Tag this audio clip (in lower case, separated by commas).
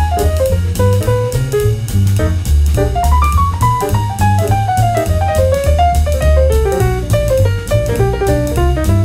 music